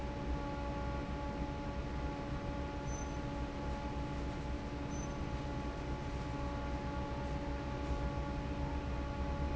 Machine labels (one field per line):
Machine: fan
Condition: normal